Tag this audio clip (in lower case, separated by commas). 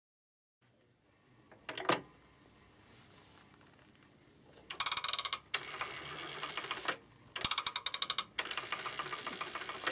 telephone